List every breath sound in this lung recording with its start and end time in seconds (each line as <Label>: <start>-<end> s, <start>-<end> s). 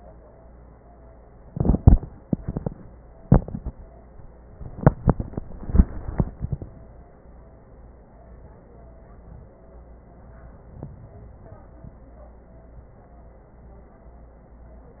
Inhalation: 10.59-12.09 s